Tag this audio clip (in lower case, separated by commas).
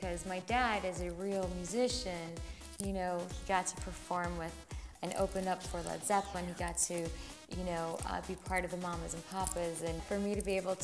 music, speech